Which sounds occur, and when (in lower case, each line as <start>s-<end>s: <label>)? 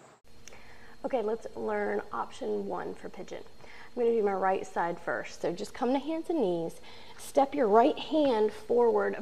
0.0s-0.2s: background noise
0.2s-9.2s: mechanisms
0.4s-0.5s: tick
0.5s-0.9s: breathing
1.0s-1.4s: female speech
1.6s-2.0s: female speech
2.1s-3.4s: female speech
3.6s-3.9s: breathing
4.0s-6.7s: female speech
6.8s-7.1s: breathing
7.1s-8.6s: female speech
8.2s-8.3s: tap
8.7s-9.2s: female speech